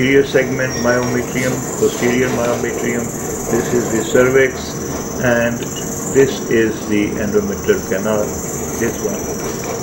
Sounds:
inside a small room, Speech

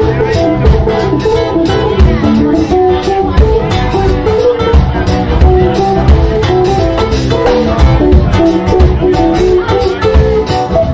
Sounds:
Musical instrument, Plucked string instrument, Guitar, Speech, Music

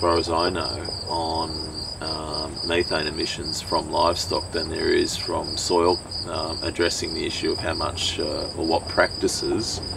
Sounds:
Speech

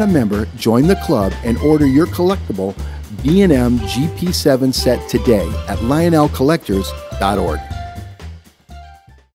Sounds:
Music, Speech

